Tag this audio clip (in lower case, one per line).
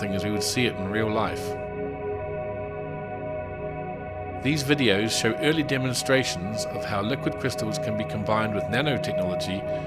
speech